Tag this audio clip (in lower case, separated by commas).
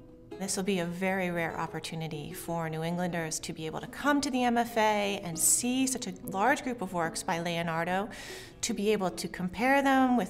speech, music, inside a small room